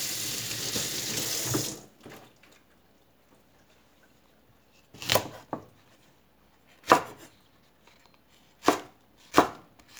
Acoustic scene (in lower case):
kitchen